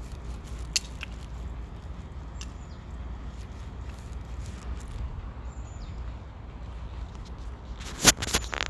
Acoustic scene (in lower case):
park